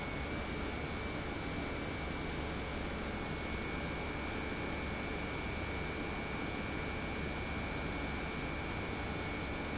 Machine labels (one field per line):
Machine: pump